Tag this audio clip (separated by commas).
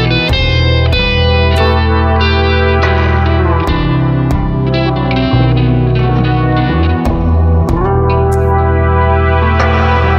Music, Distortion, Effects unit